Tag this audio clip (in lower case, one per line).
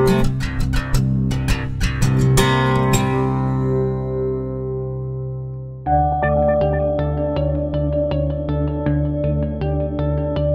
music